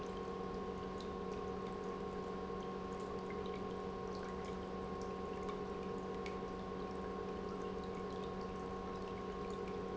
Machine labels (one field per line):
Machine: pump